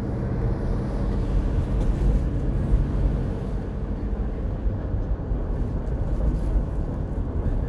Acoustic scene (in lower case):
car